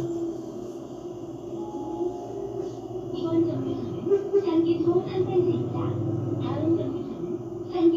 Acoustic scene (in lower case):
bus